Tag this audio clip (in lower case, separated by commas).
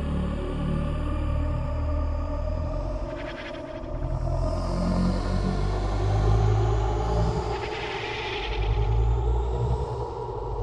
music, scary music